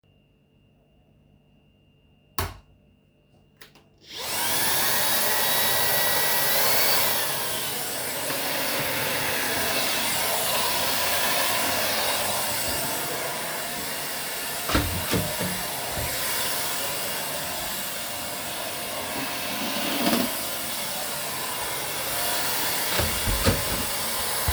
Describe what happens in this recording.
I turned on the lights and started vacuuming the floor, then I opened the door so I could vacuum on the other side of it.